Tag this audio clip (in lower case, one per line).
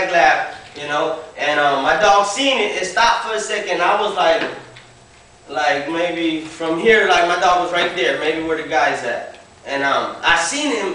speech